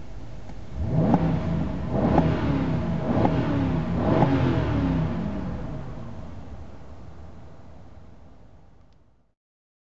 A whoosh sound is heard loudly as a car revs its engines